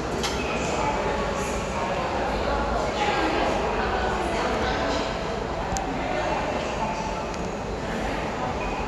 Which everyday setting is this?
subway station